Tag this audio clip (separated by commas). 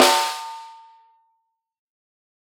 Music, Musical instrument, Snare drum, Drum, Percussion